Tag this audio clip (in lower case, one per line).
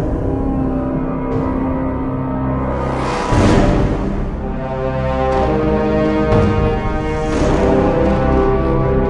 soundtrack music
music
video game music